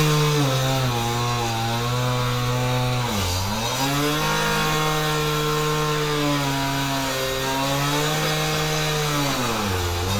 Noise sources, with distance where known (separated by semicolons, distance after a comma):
large rotating saw, near